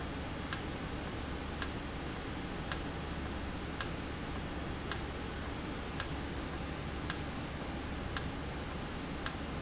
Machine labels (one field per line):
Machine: valve